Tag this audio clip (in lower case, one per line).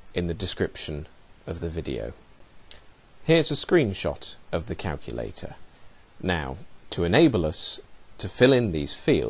speech